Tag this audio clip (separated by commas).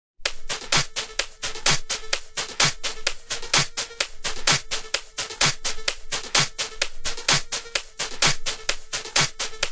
Drum machine